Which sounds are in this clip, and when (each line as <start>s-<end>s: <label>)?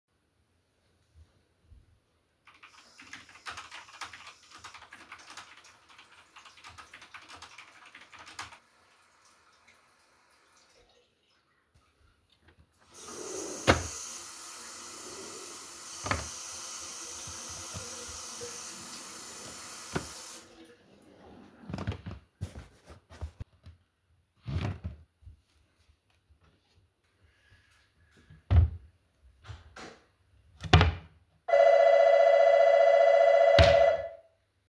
2.4s-9.0s: keyboard typing
12.9s-21.0s: running water
13.3s-14.6s: wardrobe or drawer
15.7s-16.2s: wardrobe or drawer